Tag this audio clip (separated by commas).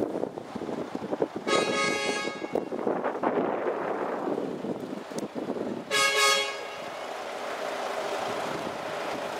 Truck, Vehicle